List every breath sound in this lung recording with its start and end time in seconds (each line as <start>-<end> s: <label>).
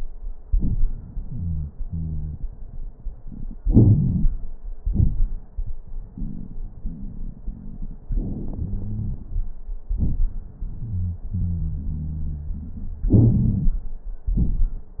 1.33-1.71 s: wheeze
1.85-2.37 s: wheeze
3.62-4.40 s: inhalation
3.62-4.40 s: crackles
4.79-5.57 s: exhalation
4.79-5.57 s: crackles
8.58-9.19 s: wheeze
10.82-11.23 s: wheeze
11.34-13.79 s: wheeze
13.10-13.84 s: inhalation
14.30-15.00 s: exhalation
14.30-15.00 s: crackles